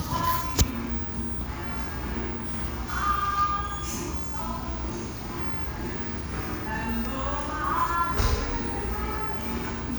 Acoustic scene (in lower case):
restaurant